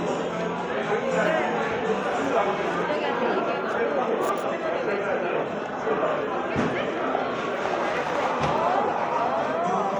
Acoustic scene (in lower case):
cafe